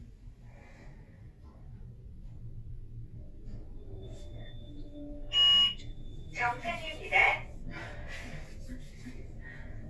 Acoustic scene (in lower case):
elevator